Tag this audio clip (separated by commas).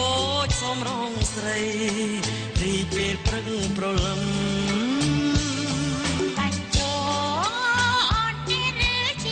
Female singing, Music